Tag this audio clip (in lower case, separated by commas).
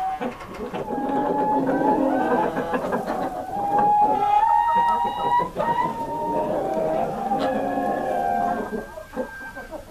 cluck, chicken, fowl, cock-a-doodle-doo